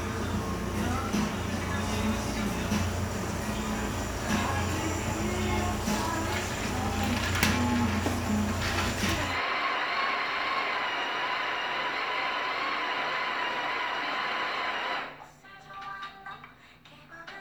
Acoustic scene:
cafe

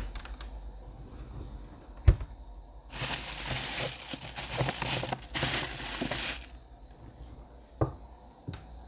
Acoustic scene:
kitchen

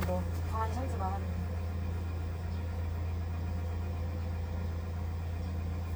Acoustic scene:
car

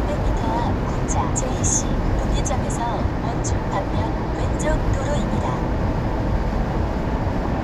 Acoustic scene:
car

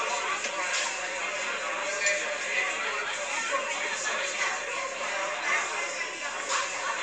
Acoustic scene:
crowded indoor space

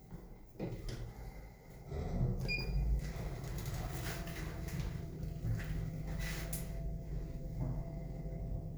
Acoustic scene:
elevator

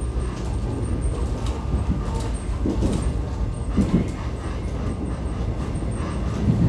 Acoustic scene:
subway train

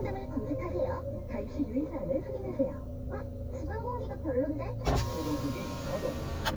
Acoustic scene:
car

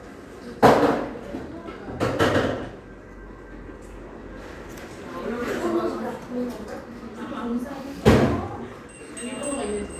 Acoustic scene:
cafe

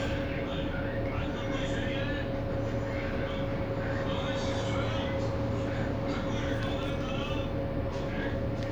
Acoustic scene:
bus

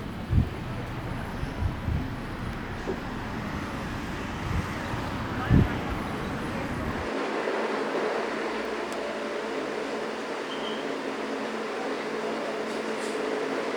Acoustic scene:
street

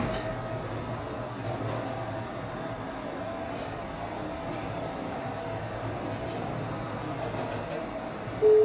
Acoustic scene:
elevator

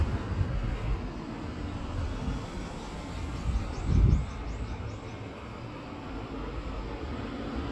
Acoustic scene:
street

